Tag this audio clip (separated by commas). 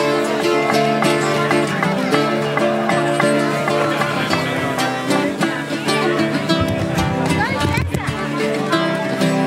Speech, Pizzicato, Musical instrument, Music